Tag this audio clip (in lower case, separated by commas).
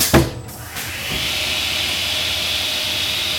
sawing, tools